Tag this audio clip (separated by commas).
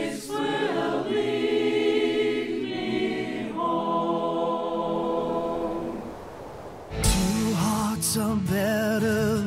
Choir